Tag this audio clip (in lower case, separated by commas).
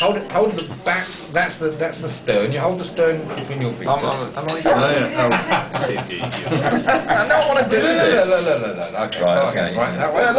speech